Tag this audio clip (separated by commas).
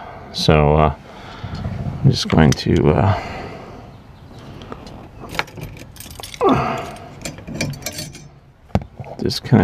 Speech